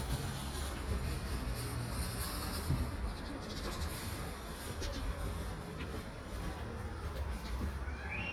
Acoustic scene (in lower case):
residential area